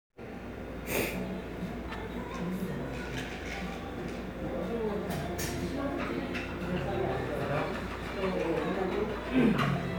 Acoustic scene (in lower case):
cafe